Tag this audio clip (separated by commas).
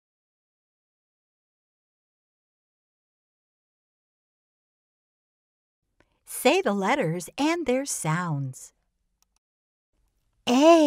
Speech